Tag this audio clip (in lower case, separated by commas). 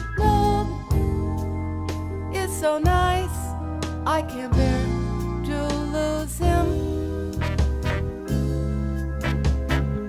music